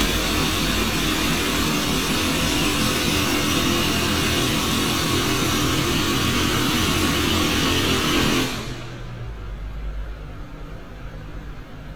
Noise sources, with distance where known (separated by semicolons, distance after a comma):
jackhammer